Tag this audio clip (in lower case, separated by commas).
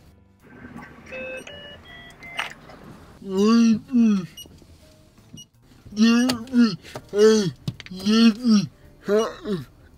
car, speech, outside, urban or man-made